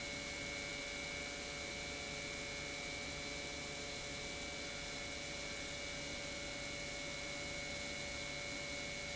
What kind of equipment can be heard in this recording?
pump